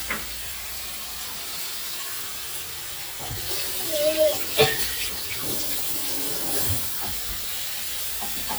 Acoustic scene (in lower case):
kitchen